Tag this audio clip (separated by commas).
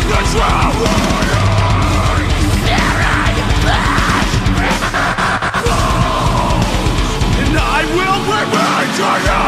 Music, Electric guitar, Musical instrument, Plucked string instrument, Guitar